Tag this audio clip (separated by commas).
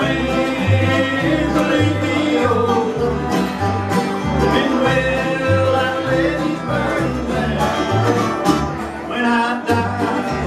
Bluegrass, Music, Flamenco